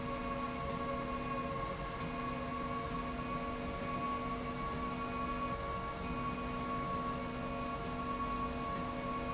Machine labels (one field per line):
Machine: slide rail